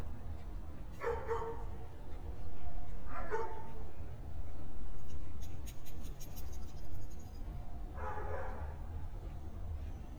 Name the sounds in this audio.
dog barking or whining